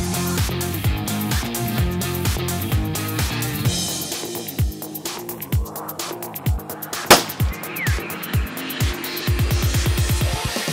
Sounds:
music

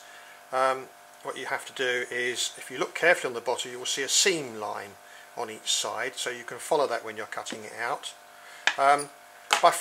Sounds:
speech

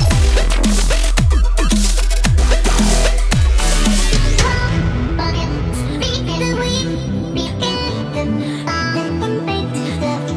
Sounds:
music

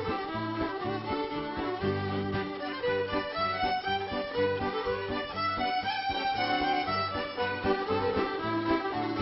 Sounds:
music, orchestra

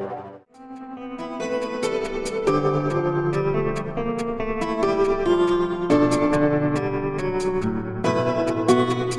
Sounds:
music, new-age music

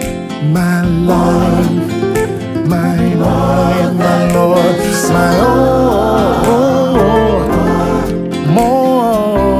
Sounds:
singing, music, christmas music

